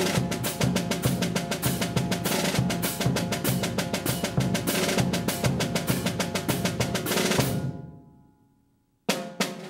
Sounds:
playing snare drum

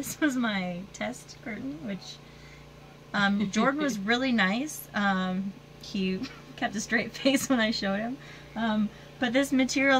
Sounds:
Speech

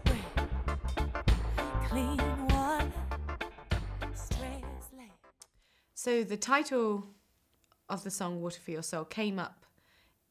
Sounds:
Music, Speech

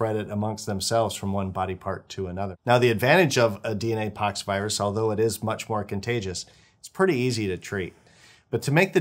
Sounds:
Speech

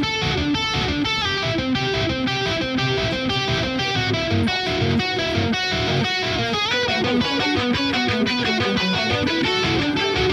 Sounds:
Electric guitar

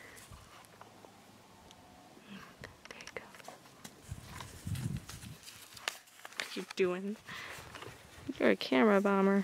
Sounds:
Whispering, Speech

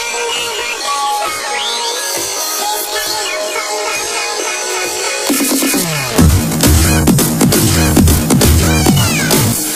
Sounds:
Music

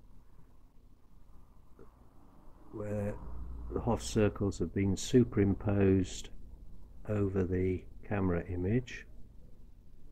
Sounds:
Speech, Silence

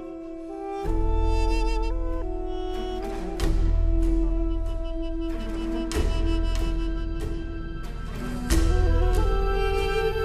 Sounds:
Music

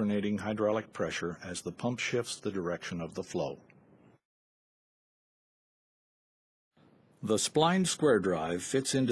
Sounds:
Speech

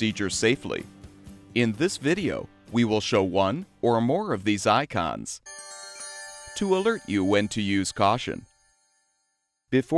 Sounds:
Music, Speech

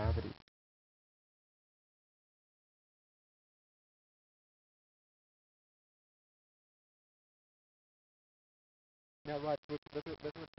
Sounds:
Speech

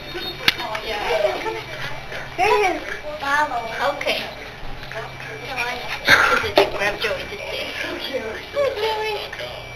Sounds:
Children playing, Speech

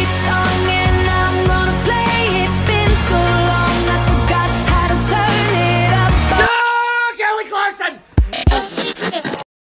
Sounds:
Speech, Music

